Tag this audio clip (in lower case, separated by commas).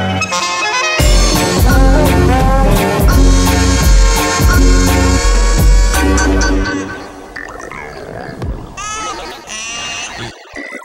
music